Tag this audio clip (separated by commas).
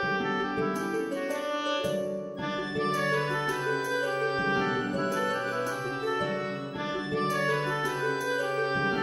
Music